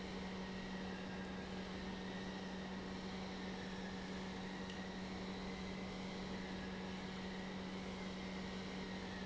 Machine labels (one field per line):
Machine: pump